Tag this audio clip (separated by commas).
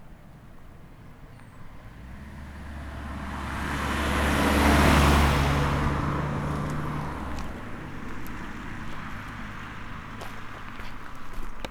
Vehicle, Car, Car passing by, Motor vehicle (road)